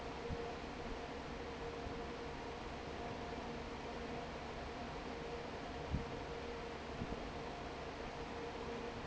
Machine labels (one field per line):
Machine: fan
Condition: normal